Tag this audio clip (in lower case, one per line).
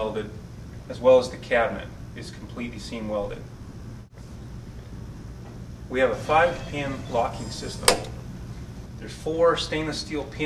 speech